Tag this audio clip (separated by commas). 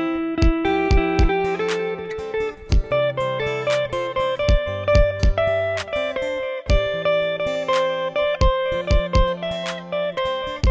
inside a small room, Plucked string instrument, Guitar, Music, Musical instrument